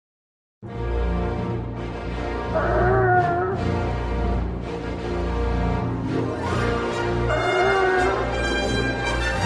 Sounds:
Music, Animal

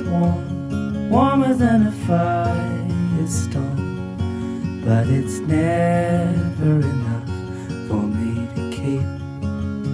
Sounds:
Music

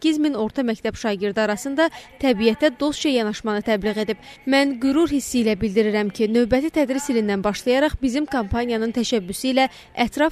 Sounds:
Female speech, Speech

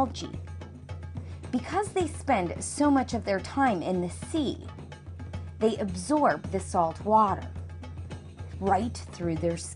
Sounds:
Music, Speech

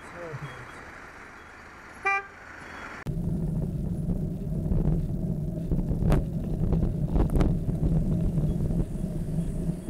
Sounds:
Car, Vehicle, outside, urban or man-made

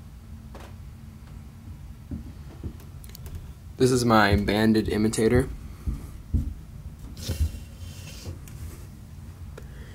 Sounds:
Speech

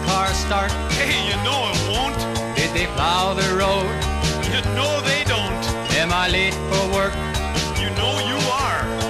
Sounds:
Music

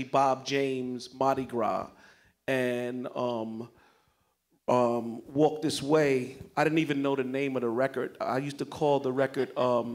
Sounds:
Speech

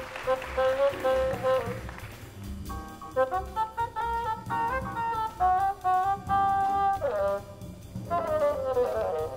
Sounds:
playing bassoon

